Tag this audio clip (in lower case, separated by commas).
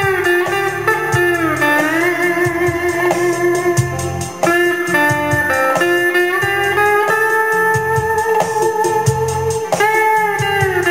music, guitar, plucked string instrument, electric guitar, musical instrument